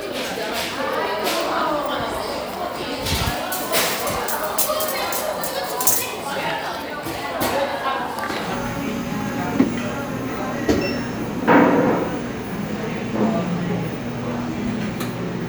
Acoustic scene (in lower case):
cafe